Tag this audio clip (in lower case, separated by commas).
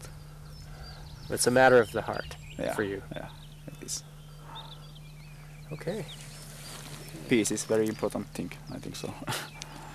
turkey